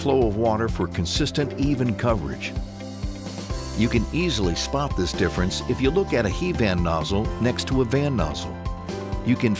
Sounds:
speech, spray, music

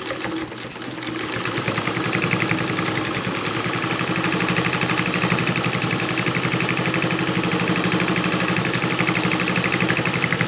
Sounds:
sewing machine

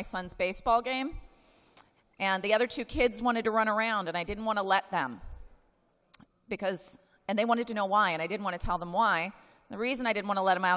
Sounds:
female speech, speech

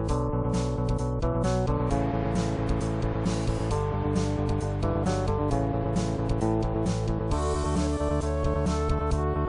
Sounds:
musical instrument, music, guitar

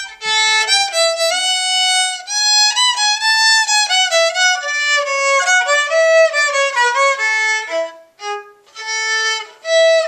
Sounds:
fiddle, music, musical instrument

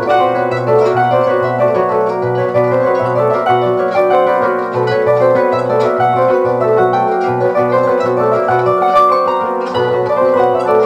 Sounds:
pizzicato, harp, playing harp

